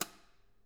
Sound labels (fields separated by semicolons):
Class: switch; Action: being turned on